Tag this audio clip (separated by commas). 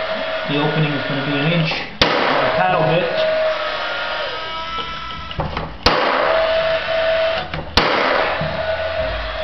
Tools, Wood, Speech